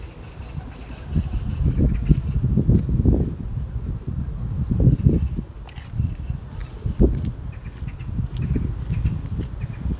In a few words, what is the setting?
park